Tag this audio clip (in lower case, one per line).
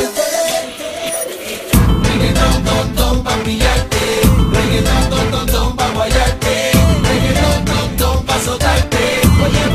music